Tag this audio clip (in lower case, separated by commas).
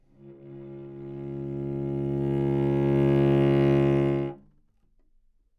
musical instrument, music, bowed string instrument